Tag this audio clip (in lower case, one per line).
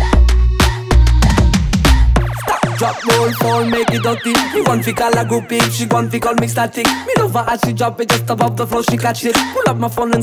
music